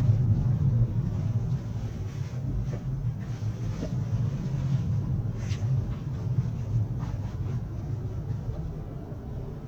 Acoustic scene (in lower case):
car